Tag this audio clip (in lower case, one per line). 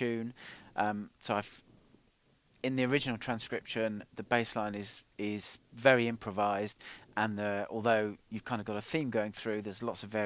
speech